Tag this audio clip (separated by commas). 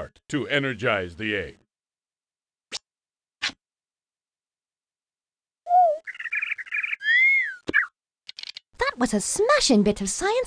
inside a small room, tweet, Speech